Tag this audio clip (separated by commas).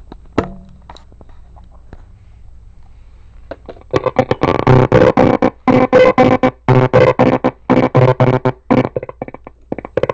Radio